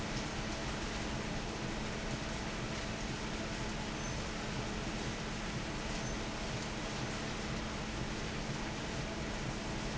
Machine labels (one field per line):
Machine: fan